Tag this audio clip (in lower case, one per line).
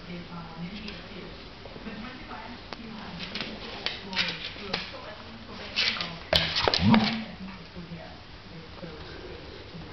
speech